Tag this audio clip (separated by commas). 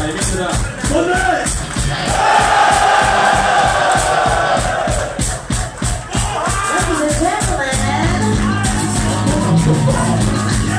Speech, Dance music, Music